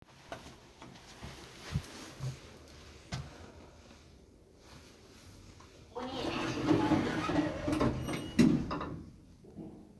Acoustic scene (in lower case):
elevator